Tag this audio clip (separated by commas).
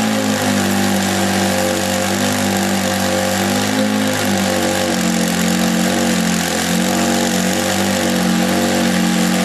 Heavy engine (low frequency), revving, Vehicle